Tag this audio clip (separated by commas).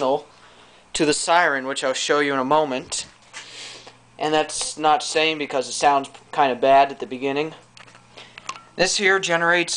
Speech